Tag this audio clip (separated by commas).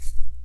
Music, Rattle (instrument), Musical instrument, Percussion